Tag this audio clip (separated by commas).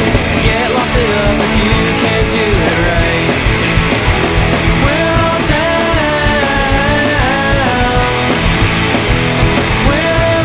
Music, Rhythm and blues